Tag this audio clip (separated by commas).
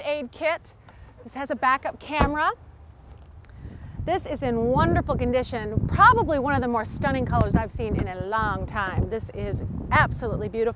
Speech